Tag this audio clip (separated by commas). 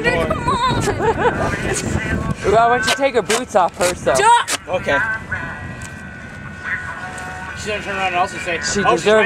Speech, Music